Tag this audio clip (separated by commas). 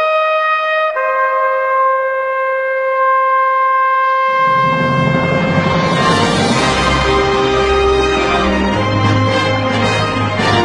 Music, Trumpet